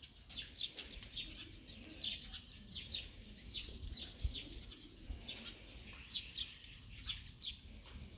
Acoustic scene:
park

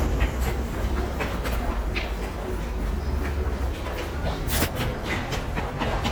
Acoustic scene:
subway station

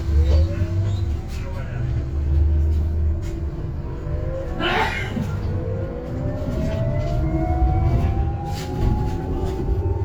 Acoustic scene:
bus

